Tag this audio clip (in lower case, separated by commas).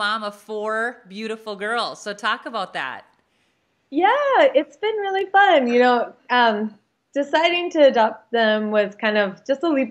inside a small room, female speech, speech